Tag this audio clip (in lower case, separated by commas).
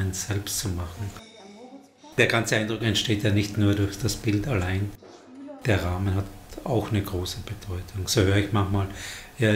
speech